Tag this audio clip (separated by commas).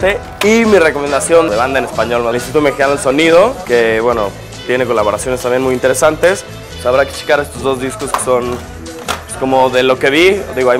Speech, Soundtrack music, Music